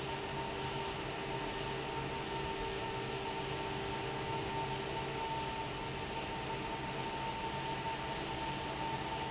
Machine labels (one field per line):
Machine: fan